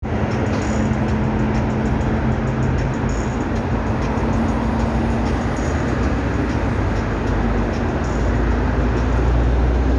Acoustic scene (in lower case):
street